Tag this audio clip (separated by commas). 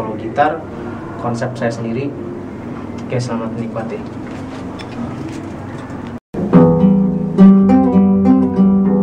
Speech, Music